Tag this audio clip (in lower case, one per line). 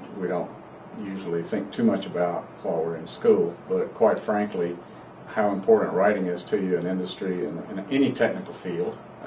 speech